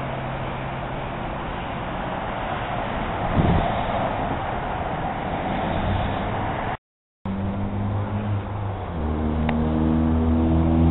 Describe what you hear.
Rustling wind with a car shifting gears and revving up in the distance